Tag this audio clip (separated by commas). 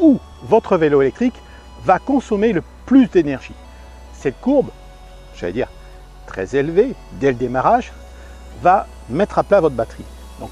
Speech, Music